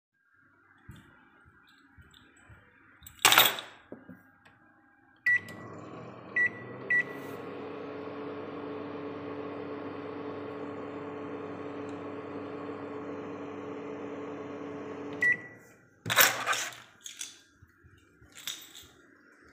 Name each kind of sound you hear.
keys, microwave